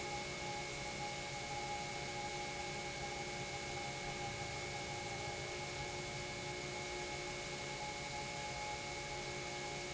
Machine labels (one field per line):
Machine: pump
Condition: normal